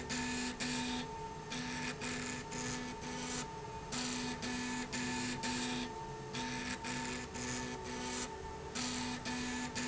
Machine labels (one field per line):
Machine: slide rail